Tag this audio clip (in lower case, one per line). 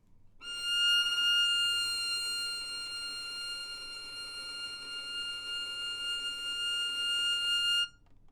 music
musical instrument
bowed string instrument